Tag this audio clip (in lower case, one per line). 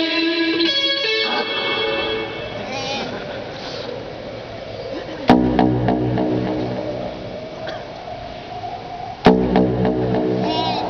speech
crowd
music
rock music
progressive rock